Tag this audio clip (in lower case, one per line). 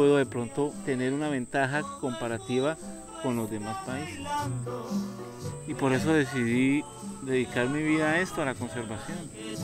outside, rural or natural
music
speech